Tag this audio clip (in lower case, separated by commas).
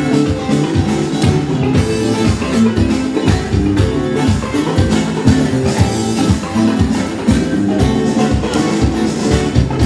music